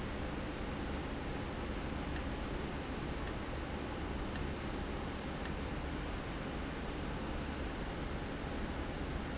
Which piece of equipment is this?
valve